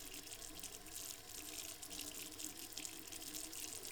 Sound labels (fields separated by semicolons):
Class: water tap; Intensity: medium